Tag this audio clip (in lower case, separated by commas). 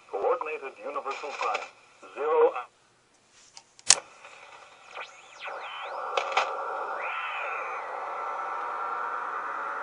speech, radio